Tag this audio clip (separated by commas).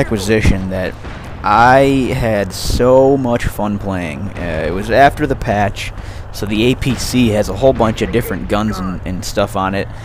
Vehicle, Speech